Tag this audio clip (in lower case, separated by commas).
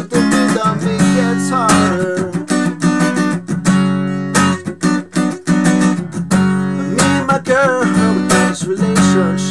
guitar, musical instrument, music